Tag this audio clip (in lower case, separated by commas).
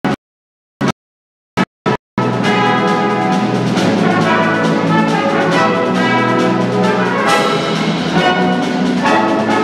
music, orchestra